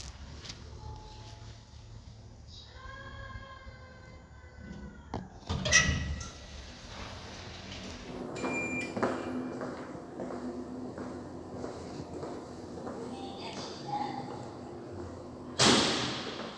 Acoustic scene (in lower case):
elevator